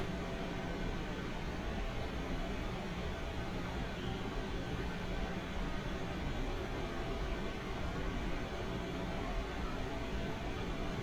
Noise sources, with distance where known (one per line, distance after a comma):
engine of unclear size